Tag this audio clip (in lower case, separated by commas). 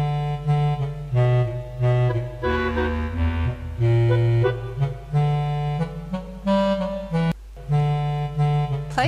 woodwind instrument, music, speech